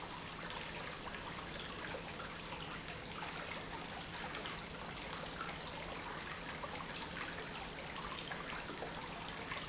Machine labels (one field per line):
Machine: pump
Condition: normal